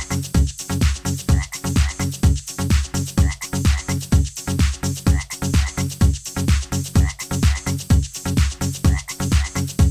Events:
[0.00, 9.90] music
[1.25, 1.55] croak
[1.73, 2.03] croak
[3.16, 3.43] croak
[3.62, 3.92] croak
[5.05, 5.35] croak
[5.52, 5.83] croak
[6.95, 7.19] croak
[7.42, 7.68] croak
[8.83, 9.13] croak
[9.31, 9.57] croak

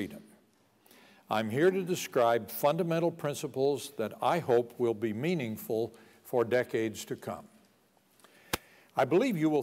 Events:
[0.00, 9.62] background noise
[8.33, 8.91] breathing
[8.87, 8.98] generic impact sounds
[8.93, 9.62] man speaking

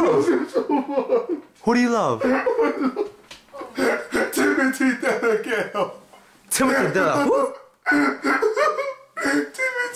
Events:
[0.00, 9.95] background noise
[3.27, 3.41] tap
[3.49, 3.77] female speech
[7.82, 9.95] sobbing
[9.52, 9.95] man speaking

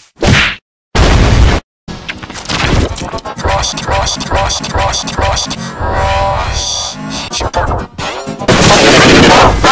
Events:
[0.01, 0.57] sound effect
[0.88, 1.60] sound effect
[1.80, 9.71] sound effect

